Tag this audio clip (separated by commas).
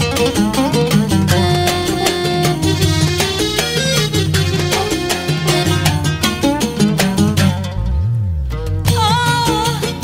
Middle Eastern music, Music